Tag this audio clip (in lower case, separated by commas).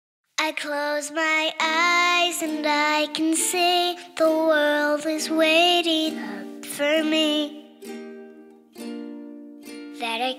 child singing